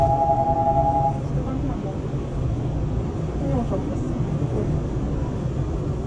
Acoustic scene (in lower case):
subway train